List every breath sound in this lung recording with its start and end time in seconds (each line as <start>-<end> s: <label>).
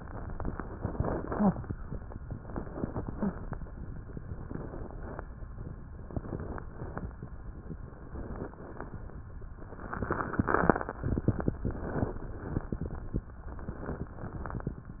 0.00-0.74 s: inhalation
0.00-0.74 s: crackles
0.76-1.50 s: exhalation
0.76-1.50 s: crackles
2.24-3.06 s: inhalation
2.24-3.06 s: crackles
3.10-3.92 s: exhalation
3.10-3.92 s: crackles
4.20-5.02 s: inhalation
4.20-5.02 s: crackles
5.02-5.43 s: exhalation
5.04-5.45 s: crackles
5.95-6.63 s: inhalation
5.95-6.63 s: crackles
6.71-7.39 s: exhalation
6.71-7.39 s: crackles
7.81-8.49 s: inhalation
7.81-8.49 s: crackles
8.51-9.19 s: exhalation
8.51-9.19 s: crackles
9.61-10.43 s: inhalation
9.61-10.43 s: crackles
10.45-10.95 s: exhalation
10.45-10.95 s: crackles
11.62-12.18 s: crackles
11.68-12.23 s: inhalation
12.22-12.78 s: exhalation
12.22-12.78 s: crackles
13.50-14.06 s: inhalation
13.50-14.06 s: crackles
14.14-14.80 s: exhalation
14.14-14.80 s: crackles